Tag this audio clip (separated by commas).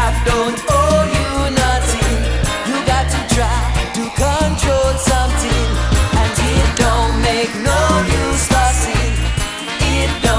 Electronic music, Music